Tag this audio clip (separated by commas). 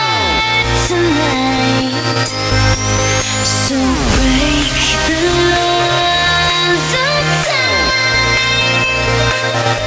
Music